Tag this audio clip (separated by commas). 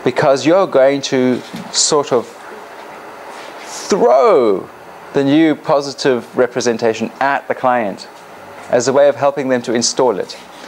Speech